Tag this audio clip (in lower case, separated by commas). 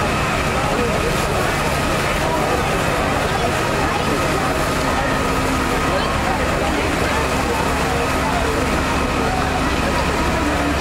speech